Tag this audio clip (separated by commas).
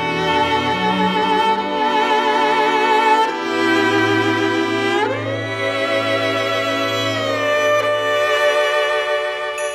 fiddle, Double bass, Bowed string instrument, Cello